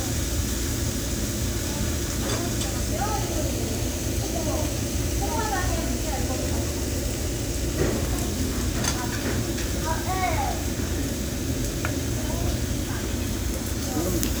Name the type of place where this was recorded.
restaurant